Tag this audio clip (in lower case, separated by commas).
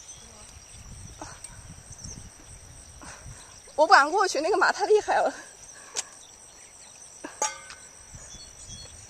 animal, speech